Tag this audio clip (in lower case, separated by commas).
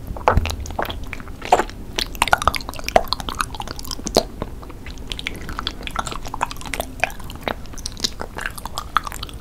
people eating noodle